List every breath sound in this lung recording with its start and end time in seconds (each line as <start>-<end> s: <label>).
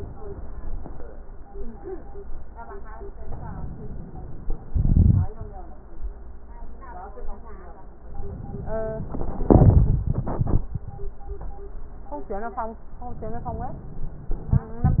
3.27-4.55 s: inhalation
13.15-14.43 s: inhalation